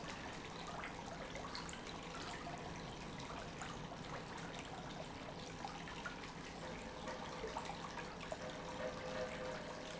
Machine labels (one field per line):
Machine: pump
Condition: normal